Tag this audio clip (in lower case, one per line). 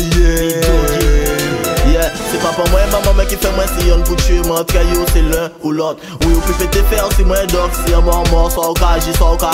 music